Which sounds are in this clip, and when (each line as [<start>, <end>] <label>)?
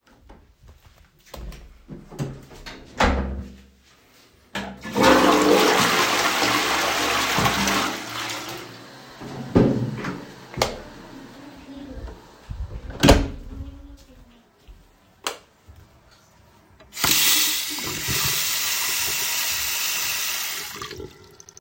[4.50, 9.03] toilet flushing
[12.50, 14.67] door
[16.94, 21.42] running water